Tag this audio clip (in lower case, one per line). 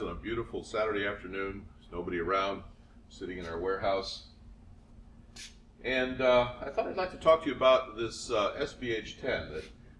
speech